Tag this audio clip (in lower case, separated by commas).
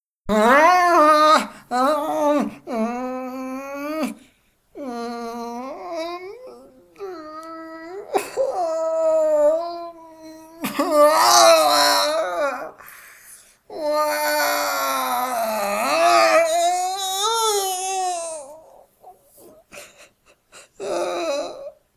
human voice, sobbing